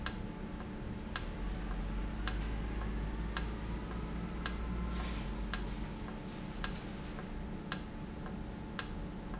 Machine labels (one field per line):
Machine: valve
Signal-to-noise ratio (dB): -6 dB